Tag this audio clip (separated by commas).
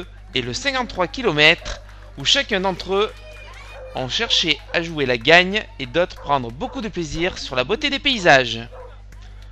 Speech, outside, urban or man-made, Run